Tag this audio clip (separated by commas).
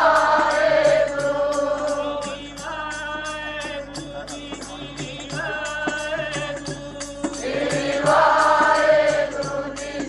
Music, Male singing, Speech